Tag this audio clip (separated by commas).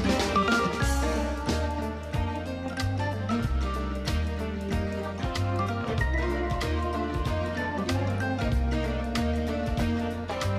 Musical instrument, Music, Plucked string instrument